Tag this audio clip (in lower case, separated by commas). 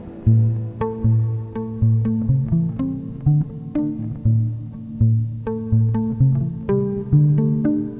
music, musical instrument, plucked string instrument, guitar